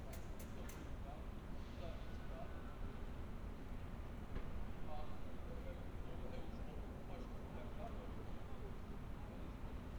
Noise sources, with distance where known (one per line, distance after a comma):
person or small group talking, near